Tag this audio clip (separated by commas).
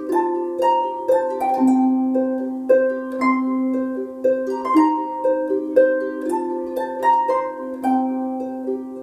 Pizzicato, playing harp, Harp